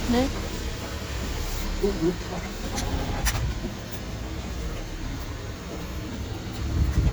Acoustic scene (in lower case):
street